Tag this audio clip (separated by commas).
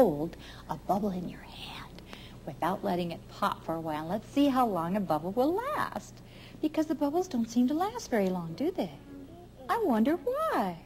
inside a small room, Speech